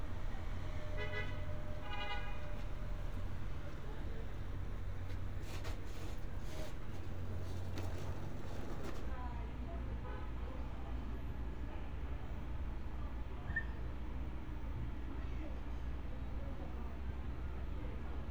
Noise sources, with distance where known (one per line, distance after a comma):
car horn